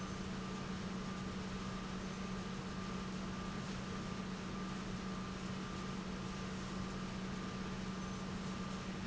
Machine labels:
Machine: pump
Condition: normal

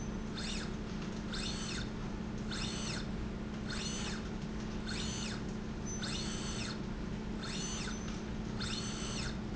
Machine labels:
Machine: slide rail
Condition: normal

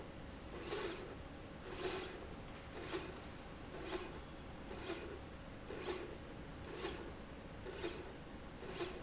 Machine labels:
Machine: slide rail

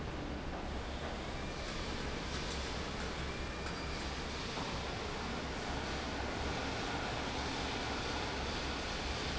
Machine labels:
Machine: fan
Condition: normal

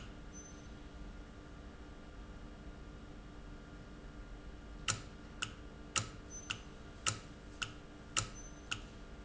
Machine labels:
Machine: valve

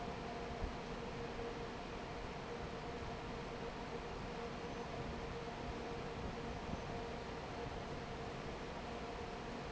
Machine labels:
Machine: fan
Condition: normal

